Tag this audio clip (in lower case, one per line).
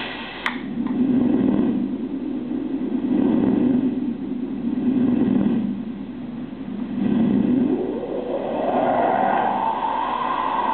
cacophony
white noise